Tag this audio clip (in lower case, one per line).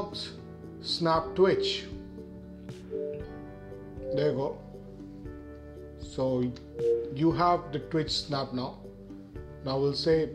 music
speech